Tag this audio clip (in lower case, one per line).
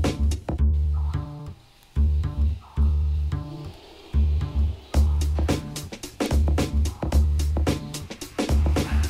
music